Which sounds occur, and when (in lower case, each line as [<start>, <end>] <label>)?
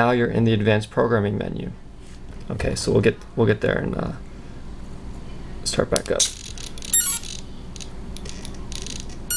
[0.00, 1.67] male speech
[0.00, 9.35] mechanisms
[1.95, 2.16] sniff
[2.18, 2.48] generic impact sounds
[2.44, 3.12] male speech
[3.17, 3.23] tick
[3.32, 4.17] male speech
[5.56, 6.28] male speech
[5.88, 6.89] generic impact sounds
[6.90, 7.19] bleep
[7.18, 7.43] generic impact sounds
[7.74, 7.80] tick
[8.12, 8.54] generic impact sounds
[8.13, 8.19] tick
[8.68, 9.16] generic impact sounds